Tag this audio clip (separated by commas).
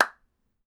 Clapping, Hands